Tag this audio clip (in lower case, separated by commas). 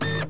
printer, mechanisms